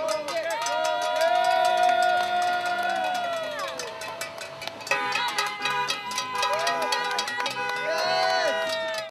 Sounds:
speech, music

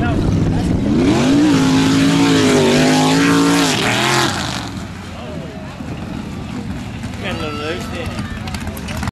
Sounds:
speech

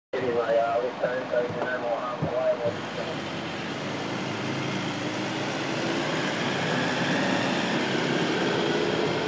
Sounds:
car, speech, vehicle

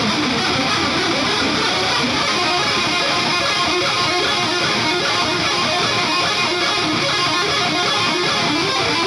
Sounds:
musical instrument, strum, guitar, plucked string instrument, music, electric guitar

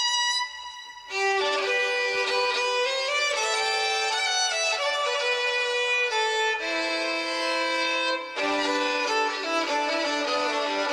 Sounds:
musical instrument, violin, music

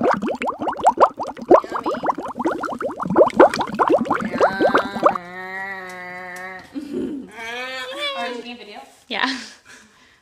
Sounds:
speech, inside a small room

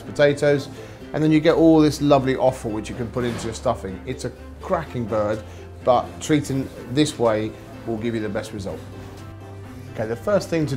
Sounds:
speech, music

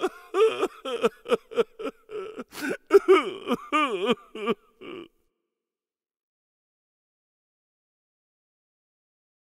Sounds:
sound effect

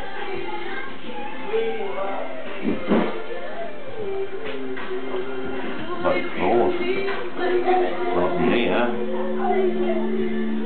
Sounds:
music, speech

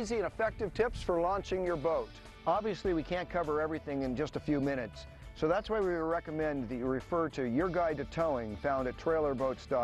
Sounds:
music, speech

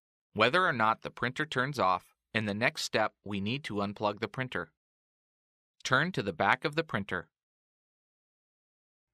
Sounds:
speech

